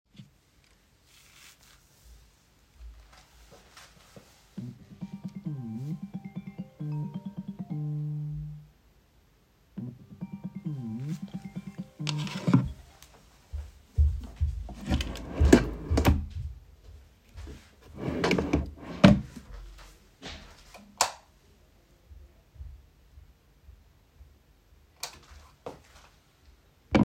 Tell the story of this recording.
My phone started ringing. I opened a drawer and then closed it again. Finally, I turned the light on and then off again.